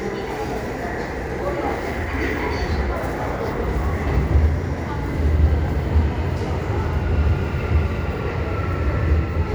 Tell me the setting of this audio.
subway station